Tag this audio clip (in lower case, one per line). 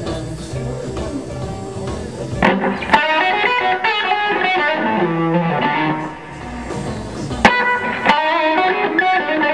musical instrument
plucked string instrument
guitar
music
electric guitar